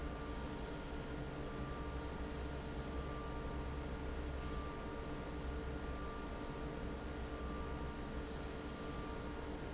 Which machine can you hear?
fan